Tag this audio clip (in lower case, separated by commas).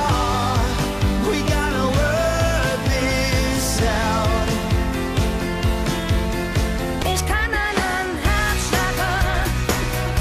music, radio